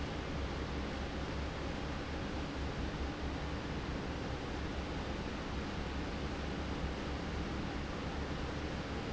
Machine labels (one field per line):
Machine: fan